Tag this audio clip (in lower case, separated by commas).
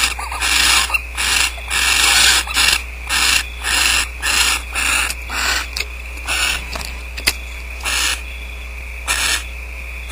animal